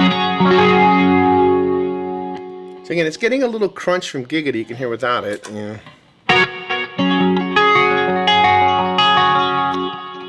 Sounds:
Guitar, Bass guitar, Music, Speech, Plucked string instrument, Musical instrument

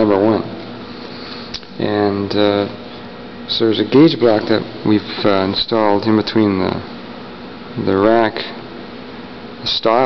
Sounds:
Heavy engine (low frequency), Speech

